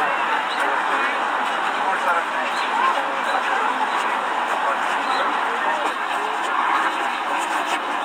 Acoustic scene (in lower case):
park